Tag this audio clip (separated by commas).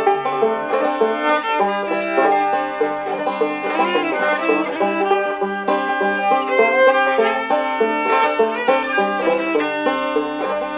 Banjo, Music